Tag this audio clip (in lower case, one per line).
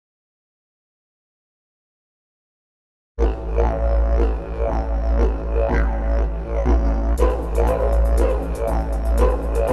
music